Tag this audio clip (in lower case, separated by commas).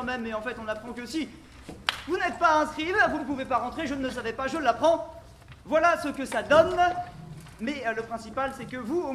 speech